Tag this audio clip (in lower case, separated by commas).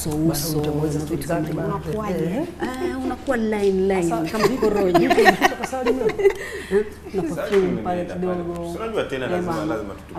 female speech